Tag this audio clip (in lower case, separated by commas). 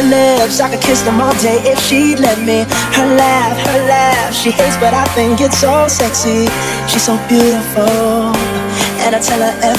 house music, music, electronic music